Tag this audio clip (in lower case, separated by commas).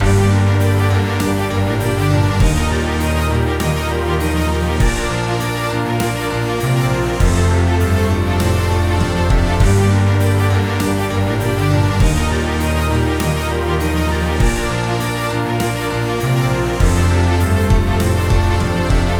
musical instrument, music